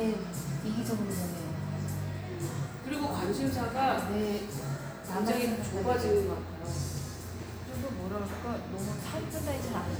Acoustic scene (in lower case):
cafe